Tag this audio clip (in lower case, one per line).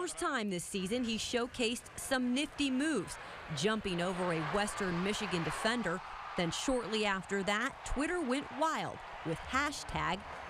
speech